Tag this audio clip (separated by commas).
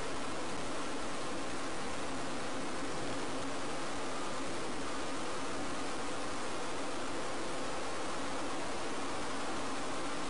Car, Vehicle